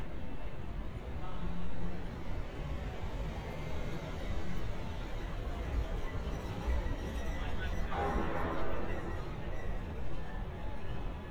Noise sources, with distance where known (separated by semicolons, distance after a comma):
non-machinery impact; person or small group talking